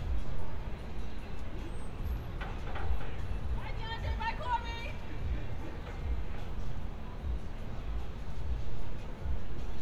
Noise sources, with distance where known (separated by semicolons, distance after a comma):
person or small group shouting